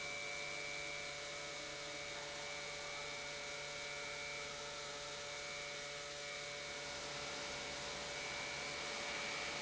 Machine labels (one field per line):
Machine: pump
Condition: normal